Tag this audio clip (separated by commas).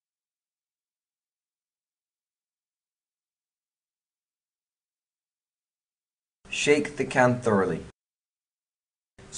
Speech